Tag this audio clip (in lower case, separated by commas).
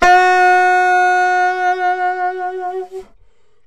musical instrument, music, woodwind instrument